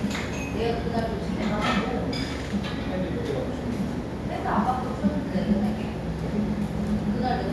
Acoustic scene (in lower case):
restaurant